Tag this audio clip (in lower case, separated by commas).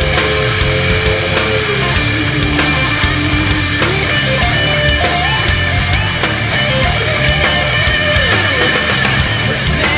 music, heavy metal